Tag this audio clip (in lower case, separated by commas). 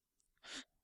respiratory sounds, breathing, gasp